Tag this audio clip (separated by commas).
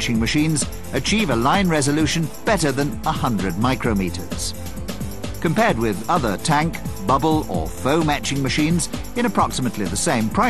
Speech, Music